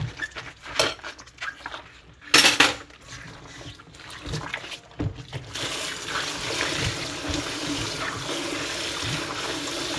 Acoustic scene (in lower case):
kitchen